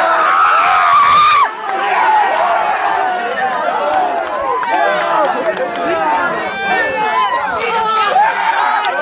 A crowd cheering and laughing